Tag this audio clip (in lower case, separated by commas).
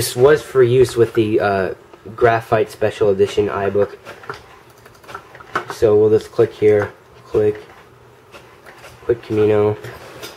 speech, inside a small room